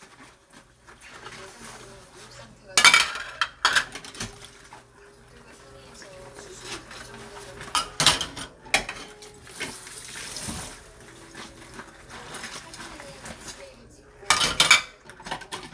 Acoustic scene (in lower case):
kitchen